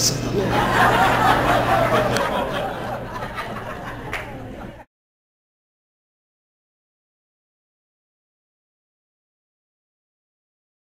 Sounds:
Speech

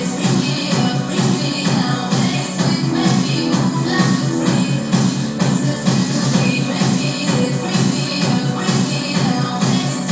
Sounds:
Music, Disco

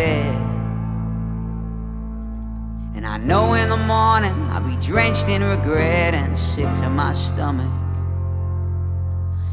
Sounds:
Music

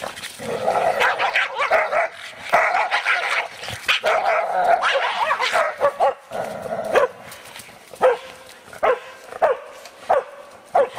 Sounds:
Yip, Bow-wow, Whimper (dog), Dog, Animal, pets

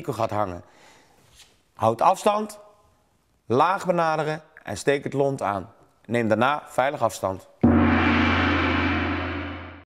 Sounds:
Speech

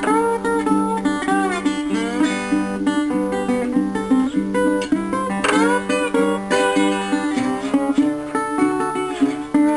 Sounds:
playing steel guitar

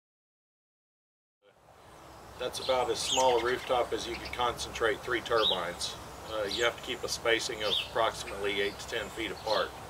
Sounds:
Speech

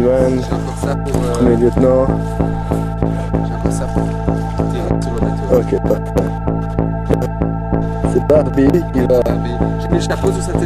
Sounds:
Speech, Music

